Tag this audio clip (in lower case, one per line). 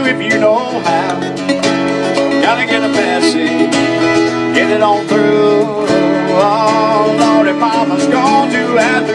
music
happy music